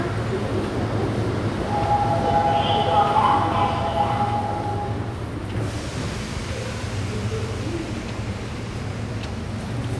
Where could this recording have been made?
in a subway station